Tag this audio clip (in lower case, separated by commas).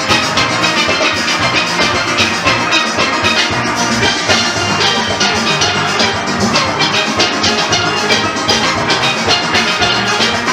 playing steelpan